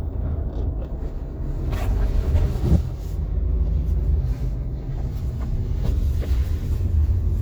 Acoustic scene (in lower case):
car